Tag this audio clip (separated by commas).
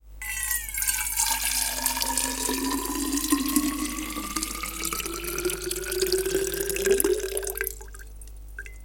Liquid, Trickle, Pour, Fill (with liquid)